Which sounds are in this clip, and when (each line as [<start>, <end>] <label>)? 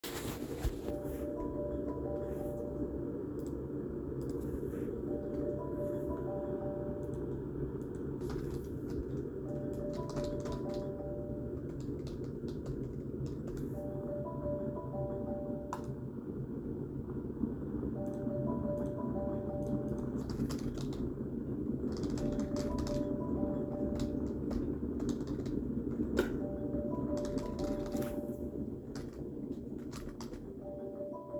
[0.00, 30.92] coffee machine
[0.22, 30.02] phone ringing
[9.62, 14.46] keyboard typing
[20.06, 29.03] keyboard typing
[29.70, 31.07] keyboard typing
[30.34, 31.39] phone ringing